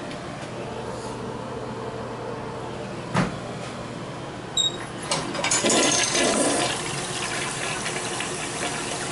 A toilet is flushed